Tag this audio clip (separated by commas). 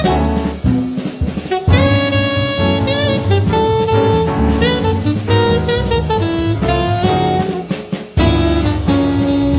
Music